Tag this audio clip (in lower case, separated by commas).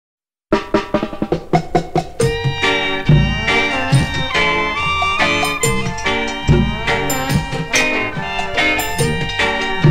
music